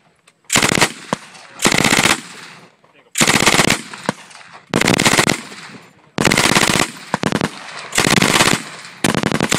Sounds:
machine gun, machine gun shooting, gunshot

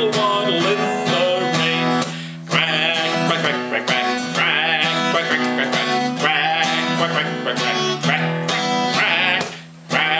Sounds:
music

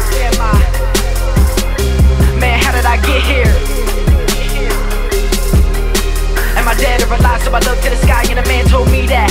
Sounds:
background music, rhythm and blues, music, soundtrack music

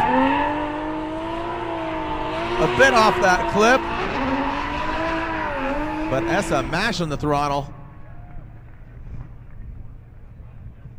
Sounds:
skidding, vehicle, speech, car, race car

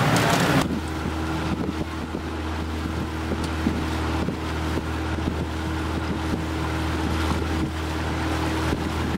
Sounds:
motorboat, water vehicle, speedboat

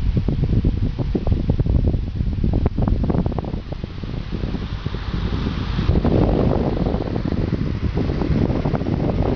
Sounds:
mechanical fan

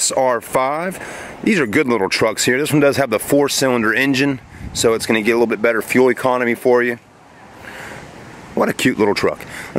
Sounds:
speech

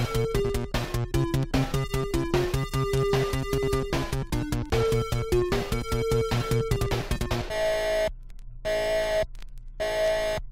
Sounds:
video game music, background music, music

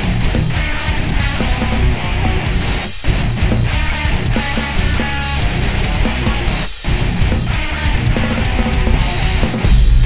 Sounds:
drum machine, drum, musical instrument, music

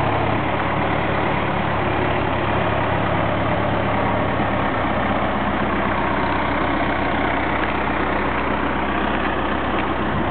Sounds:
outside, rural or natural, vehicle

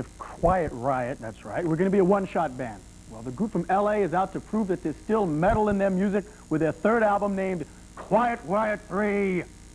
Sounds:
speech

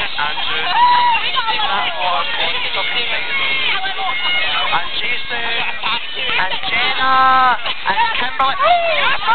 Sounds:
speech, music

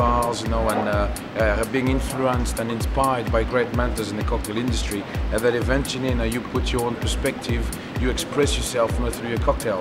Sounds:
speech, music

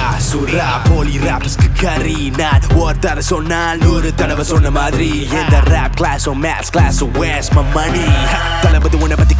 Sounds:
music

